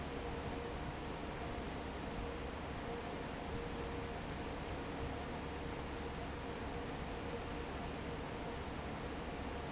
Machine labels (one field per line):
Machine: fan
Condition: normal